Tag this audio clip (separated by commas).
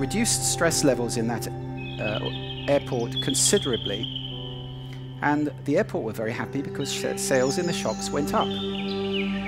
Speech, Music, monologue, Male speech